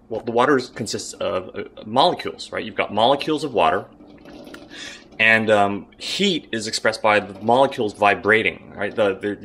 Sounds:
Speech

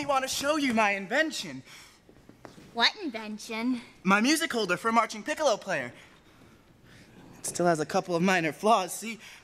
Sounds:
Speech

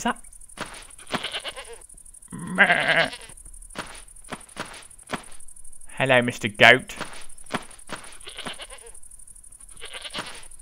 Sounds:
Goat, Speech

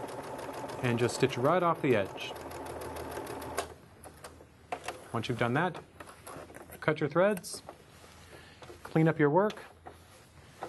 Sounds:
Sewing machine

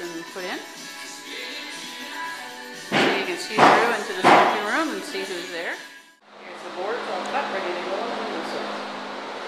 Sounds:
Speech, Music

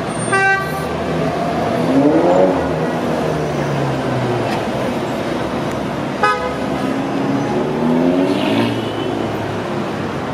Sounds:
outside, urban or man-made, Toot

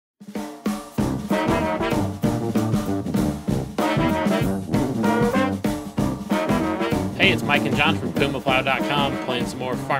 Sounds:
Trombone

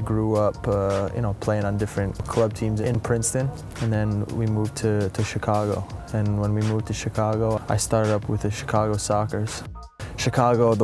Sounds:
Speech, Music

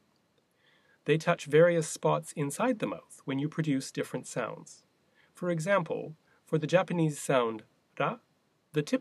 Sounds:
man speaking, Speech, monologue

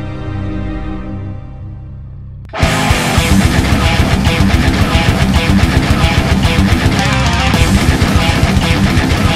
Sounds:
Heavy metal, Music

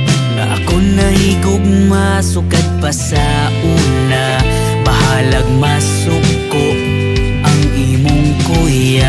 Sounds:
Music

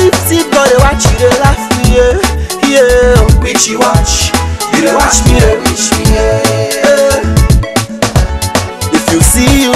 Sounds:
Music, Funk, Pop music

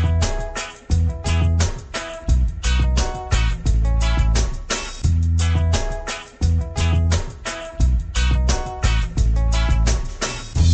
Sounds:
Music

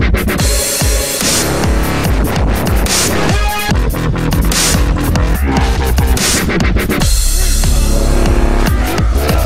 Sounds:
Music, Dubstep

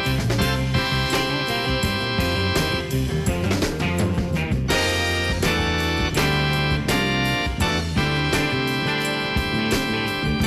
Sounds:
Music

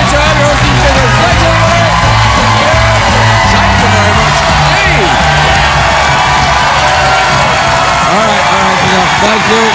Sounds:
Narration, Speech, Music

